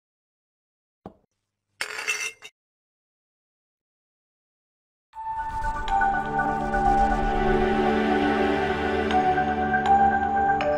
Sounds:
Music

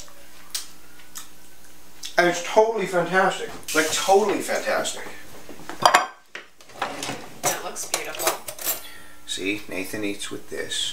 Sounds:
Speech, inside a small room

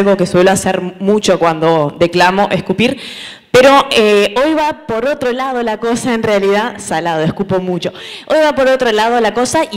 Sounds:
Speech

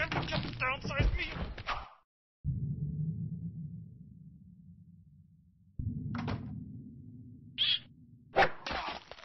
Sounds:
thwack

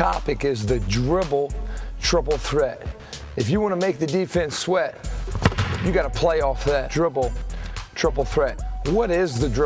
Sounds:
Speech, Music

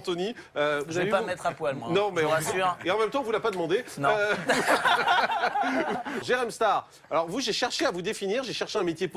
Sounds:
Speech

